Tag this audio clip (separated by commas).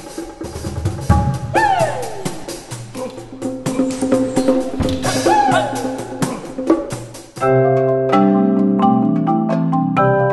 Music, Percussion